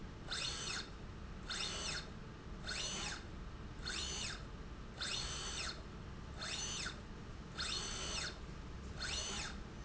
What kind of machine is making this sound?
slide rail